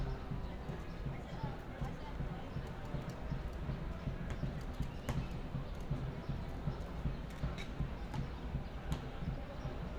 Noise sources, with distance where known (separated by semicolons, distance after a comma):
unidentified human voice, near